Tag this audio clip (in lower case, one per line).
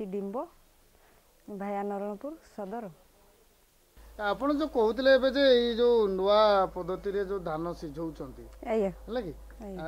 speech